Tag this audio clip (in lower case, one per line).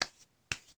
hands
clapping